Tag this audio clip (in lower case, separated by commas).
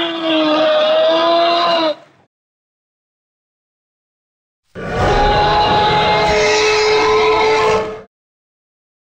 music